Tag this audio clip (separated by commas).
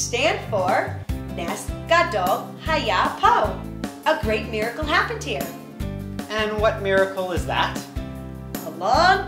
Music, Speech